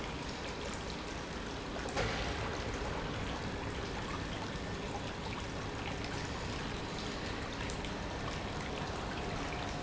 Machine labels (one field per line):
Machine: pump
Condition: normal